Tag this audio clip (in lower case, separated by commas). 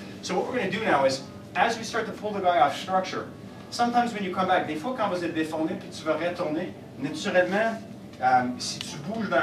speech